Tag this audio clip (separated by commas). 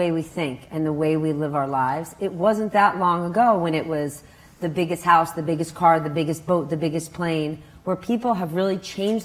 Speech